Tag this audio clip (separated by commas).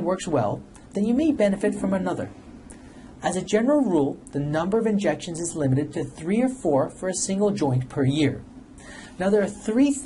Speech